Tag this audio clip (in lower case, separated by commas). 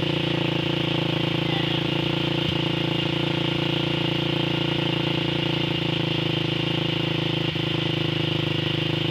speech